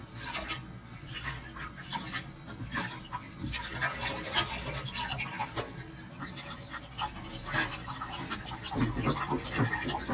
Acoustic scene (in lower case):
kitchen